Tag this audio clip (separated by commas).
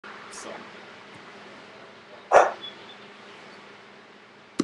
Speech